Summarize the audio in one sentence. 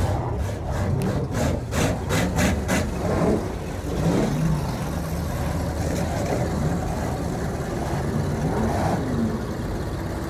Someone saws followed by running water and people taking in the background